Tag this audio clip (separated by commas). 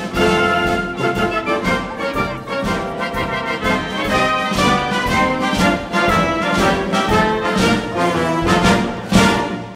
Music